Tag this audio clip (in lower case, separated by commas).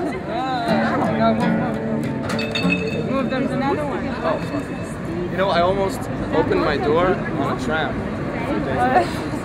speech, music